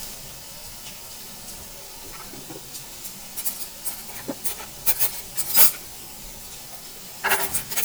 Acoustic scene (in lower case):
restaurant